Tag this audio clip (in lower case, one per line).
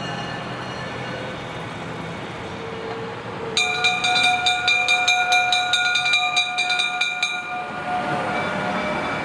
vehicle